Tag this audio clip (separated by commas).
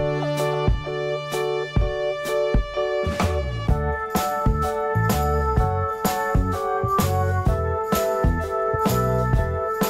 Music